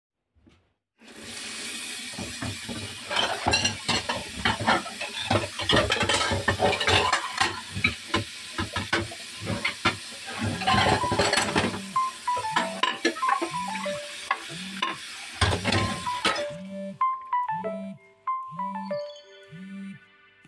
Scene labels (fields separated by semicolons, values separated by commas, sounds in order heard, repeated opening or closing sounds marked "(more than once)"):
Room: kitchen; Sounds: running water, cutlery and dishes, phone ringing